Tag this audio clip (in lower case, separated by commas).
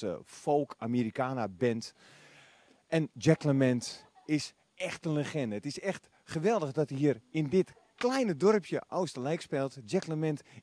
speech